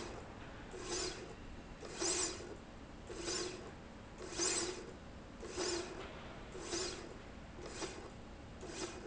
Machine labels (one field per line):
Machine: slide rail